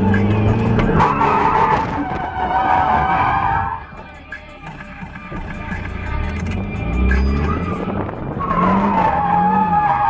An engine roars and tires squeal, wind blows hard